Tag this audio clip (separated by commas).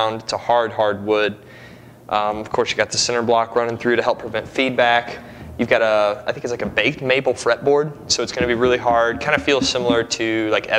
Speech